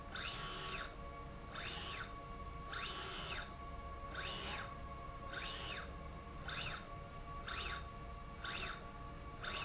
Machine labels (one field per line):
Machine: slide rail